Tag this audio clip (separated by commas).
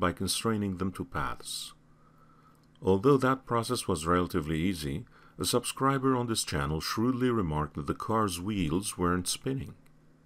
Speech